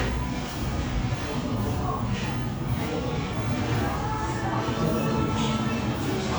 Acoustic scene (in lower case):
crowded indoor space